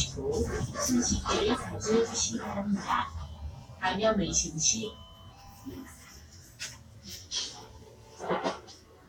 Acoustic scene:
bus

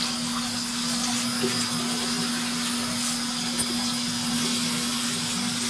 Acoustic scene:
restroom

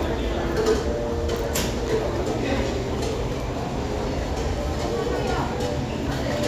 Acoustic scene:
crowded indoor space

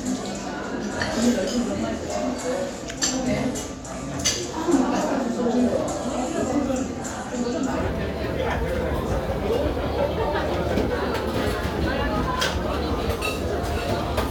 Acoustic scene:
restaurant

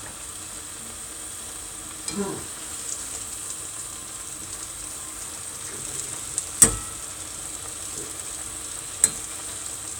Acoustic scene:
kitchen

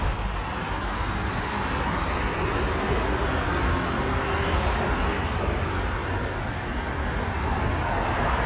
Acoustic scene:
street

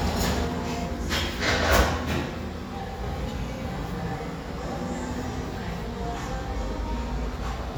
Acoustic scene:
cafe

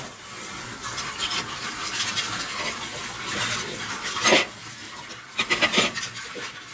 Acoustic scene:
kitchen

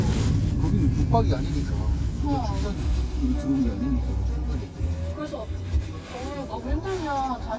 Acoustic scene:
car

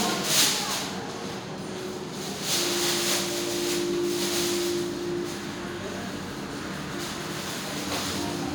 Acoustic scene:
restaurant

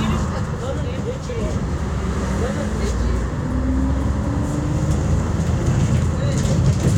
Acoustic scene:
bus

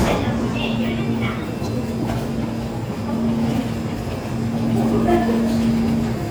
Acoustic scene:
subway station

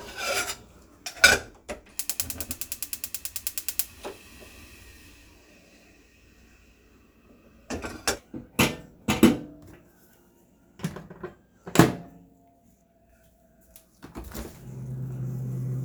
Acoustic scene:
kitchen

